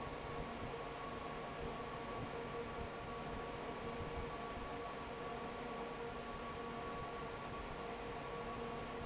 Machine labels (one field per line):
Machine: fan